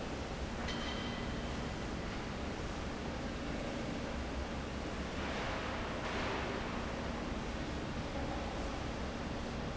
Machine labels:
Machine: fan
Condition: normal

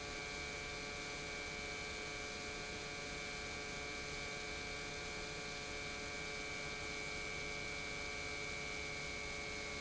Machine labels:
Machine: pump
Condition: normal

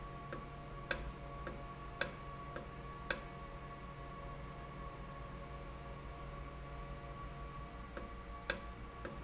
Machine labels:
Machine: valve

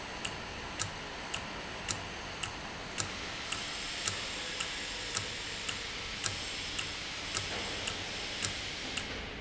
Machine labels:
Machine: valve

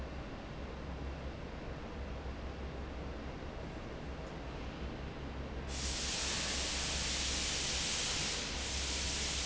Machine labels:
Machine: fan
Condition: normal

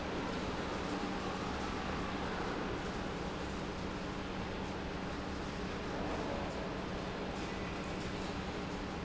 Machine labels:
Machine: pump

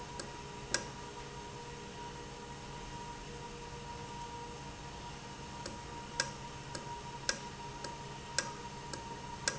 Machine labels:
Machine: valve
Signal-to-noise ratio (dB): 0 dB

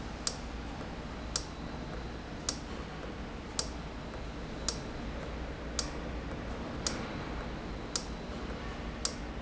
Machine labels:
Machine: valve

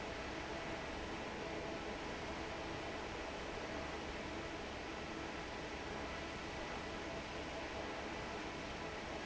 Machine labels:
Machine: fan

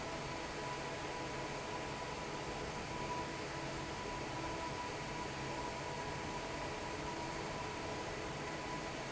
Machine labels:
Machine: fan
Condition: normal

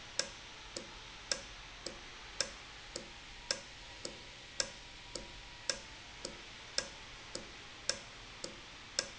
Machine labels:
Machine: valve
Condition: normal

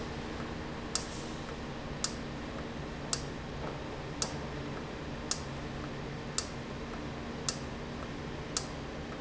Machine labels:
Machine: valve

